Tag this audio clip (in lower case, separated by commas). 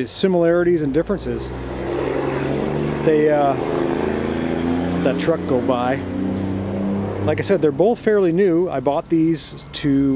speech